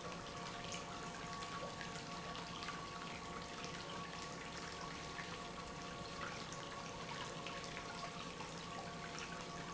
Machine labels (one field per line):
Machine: pump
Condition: normal